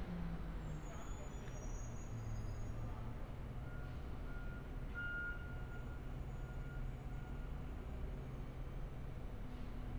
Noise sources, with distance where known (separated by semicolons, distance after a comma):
engine of unclear size, far; reverse beeper, far